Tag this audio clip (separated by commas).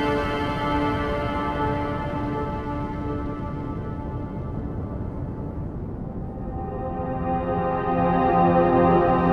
Music